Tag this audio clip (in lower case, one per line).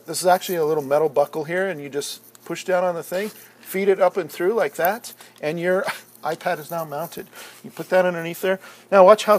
speech